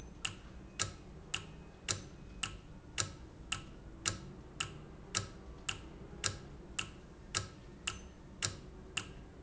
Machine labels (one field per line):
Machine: valve